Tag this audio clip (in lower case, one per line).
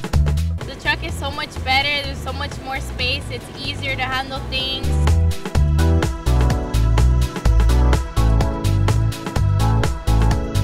music
speech